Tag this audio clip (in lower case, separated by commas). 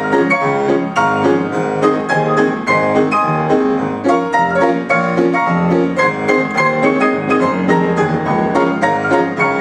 music